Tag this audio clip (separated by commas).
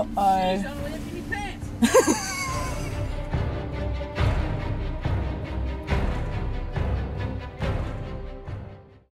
Speech, Music